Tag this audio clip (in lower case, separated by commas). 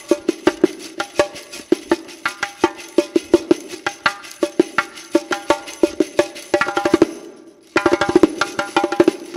wood block, music